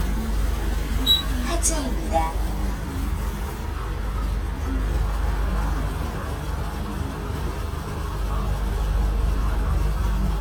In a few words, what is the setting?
bus